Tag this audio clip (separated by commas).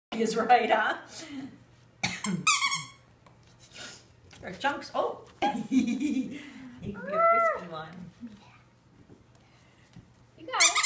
Dog, Domestic animals, Animal